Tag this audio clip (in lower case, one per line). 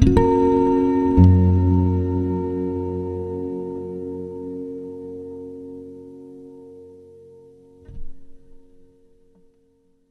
plucked string instrument
guitar
musical instrument
music